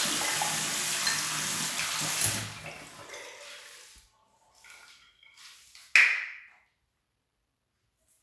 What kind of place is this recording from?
restroom